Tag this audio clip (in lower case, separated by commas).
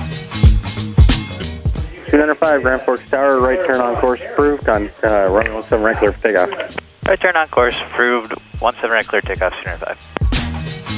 speech, music